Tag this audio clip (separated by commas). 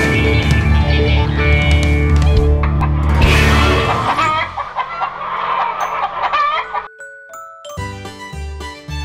xylophone, Mallet percussion, Chime, Glockenspiel